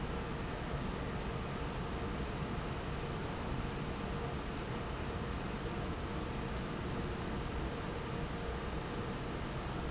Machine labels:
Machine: fan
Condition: normal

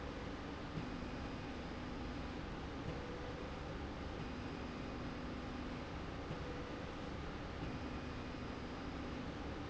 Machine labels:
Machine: slide rail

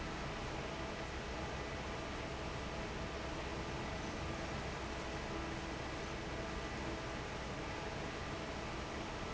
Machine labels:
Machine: fan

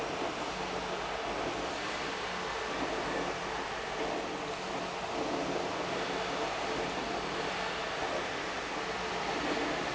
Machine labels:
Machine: pump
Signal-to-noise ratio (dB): -6 dB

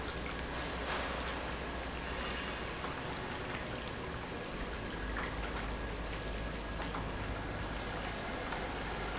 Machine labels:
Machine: pump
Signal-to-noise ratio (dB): -6 dB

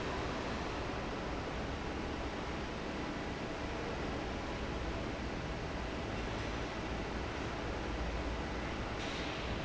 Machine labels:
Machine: fan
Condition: normal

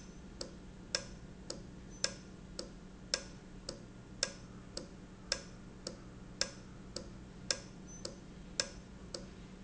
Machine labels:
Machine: valve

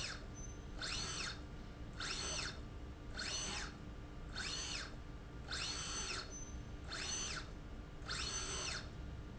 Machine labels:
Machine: slide rail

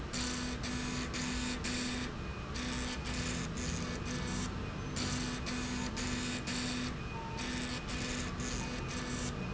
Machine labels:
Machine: slide rail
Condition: abnormal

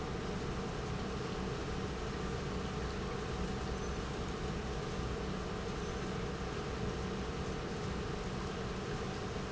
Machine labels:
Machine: pump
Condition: normal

